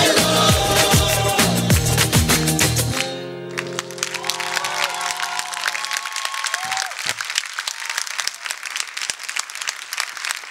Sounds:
music

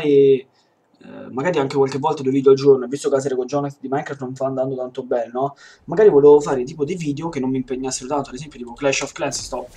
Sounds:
speech

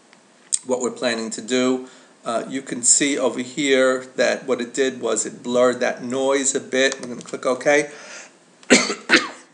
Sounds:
speech
throat clearing

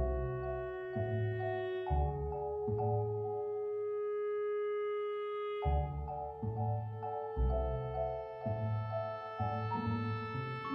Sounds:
music

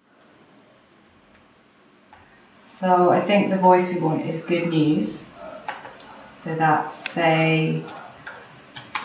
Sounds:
speech

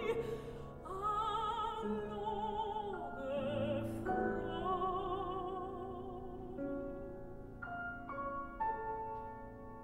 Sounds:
musical instrument
piano

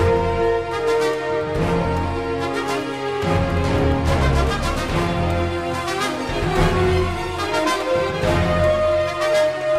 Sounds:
theme music
music

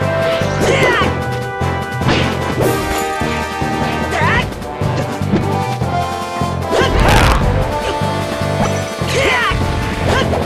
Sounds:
music
video game music

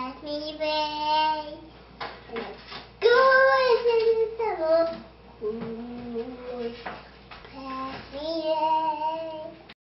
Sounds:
child singing

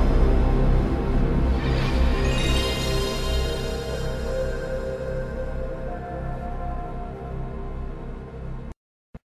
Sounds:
music

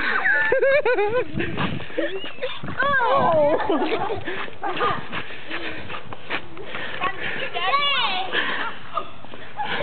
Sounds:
speech

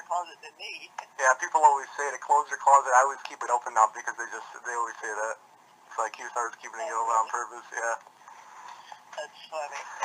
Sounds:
speech

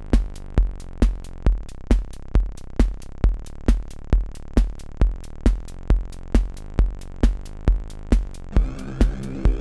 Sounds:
sound effect

